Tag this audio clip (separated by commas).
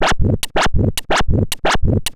Musical instrument, Scratching (performance technique), Music